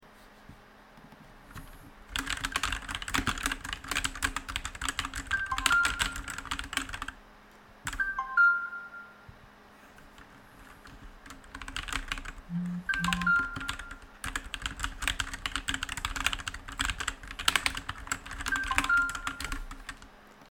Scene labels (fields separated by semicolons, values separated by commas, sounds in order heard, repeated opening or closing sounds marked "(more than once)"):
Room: office; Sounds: keyboard typing, phone ringing